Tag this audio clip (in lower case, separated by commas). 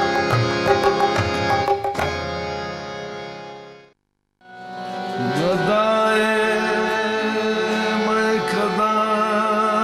singing, carnatic music